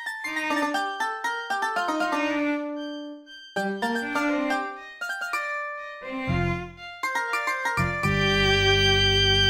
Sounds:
piano
fiddle
music
cello

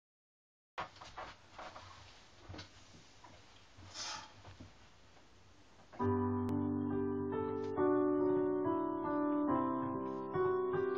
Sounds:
music
piano
keyboard (musical)
musical instrument
electric piano

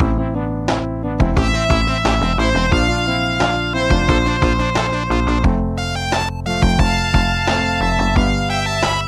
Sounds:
music

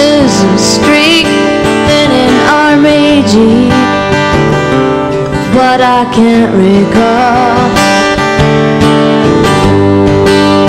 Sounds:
music

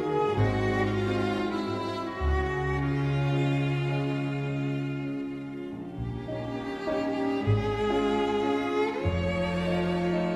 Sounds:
musical instrument
violin
music

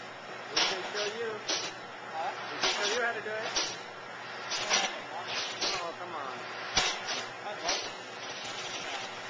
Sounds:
speech

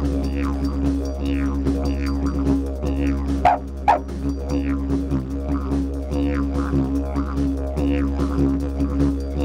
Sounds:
playing didgeridoo

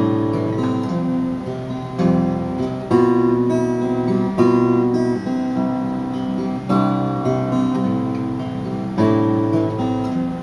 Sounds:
musical instrument
music
strum
plucked string instrument
guitar

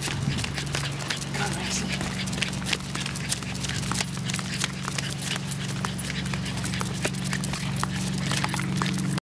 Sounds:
speech

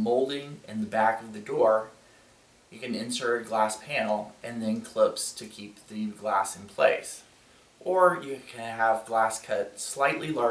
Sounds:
speech

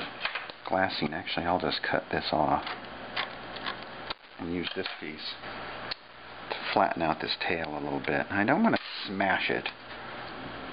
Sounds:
speech

